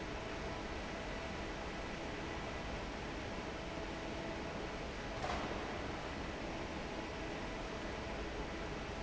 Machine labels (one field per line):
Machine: fan